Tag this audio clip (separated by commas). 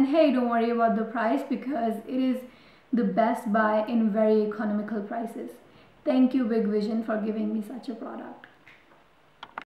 Speech